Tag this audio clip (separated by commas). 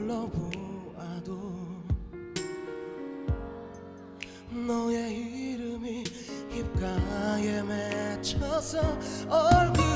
Music